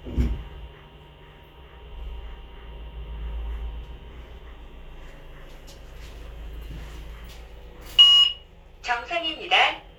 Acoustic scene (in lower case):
elevator